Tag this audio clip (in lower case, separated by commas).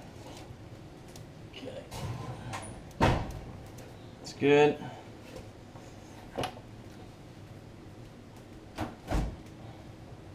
inside a small room, speech